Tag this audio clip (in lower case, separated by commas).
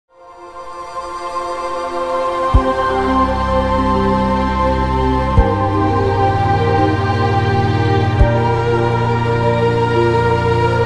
new-age music